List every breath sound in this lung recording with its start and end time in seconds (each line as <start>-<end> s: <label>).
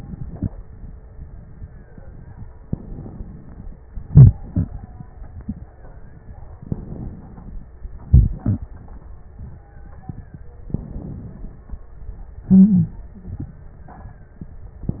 1.64-2.74 s: stridor
2.55-3.79 s: inhalation
4.09-4.71 s: exhalation
6.53-7.70 s: inhalation
8.10-8.67 s: exhalation
9.12-10.57 s: stridor
10.72-11.82 s: inhalation
12.43-13.00 s: exhalation
13.34-14.84 s: stridor